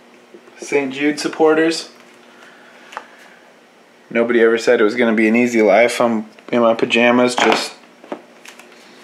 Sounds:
speech

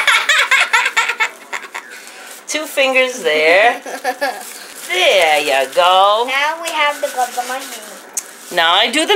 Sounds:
belly laugh

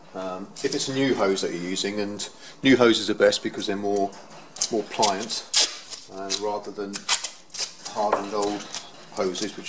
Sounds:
speech

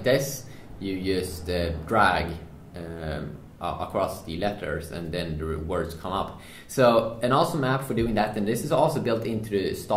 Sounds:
speech

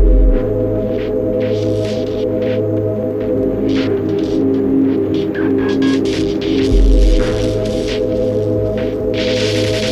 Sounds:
music

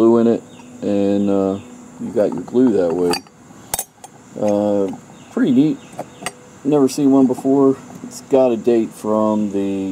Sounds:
speech
outside, rural or natural

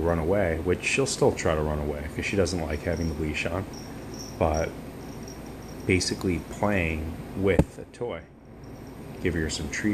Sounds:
speech

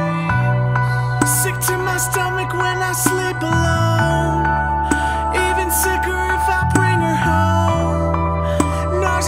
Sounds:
music

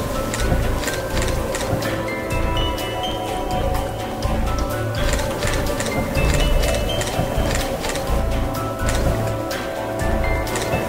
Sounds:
music

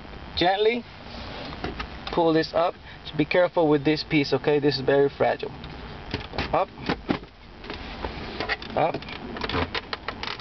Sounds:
speech

